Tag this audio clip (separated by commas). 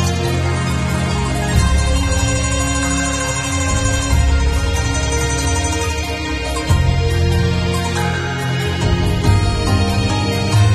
Music